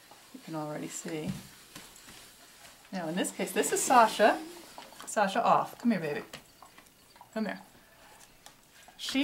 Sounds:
Speech

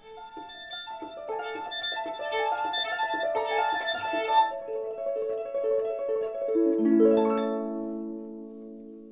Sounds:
Bowed string instrument, Harp, playing harp, Pizzicato, fiddle

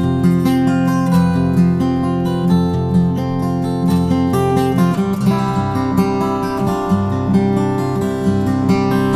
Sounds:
Guitar, Musical instrument, Acoustic guitar, Plucked string instrument, Music, Strum

